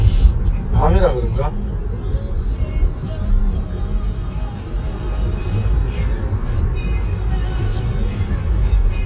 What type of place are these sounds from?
car